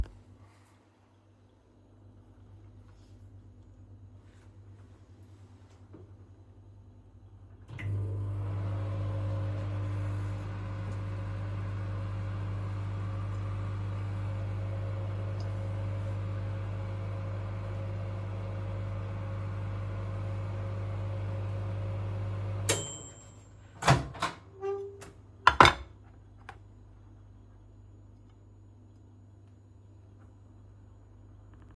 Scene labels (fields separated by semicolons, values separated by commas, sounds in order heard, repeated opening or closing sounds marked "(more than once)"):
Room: kitchen; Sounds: microwave, cutlery and dishes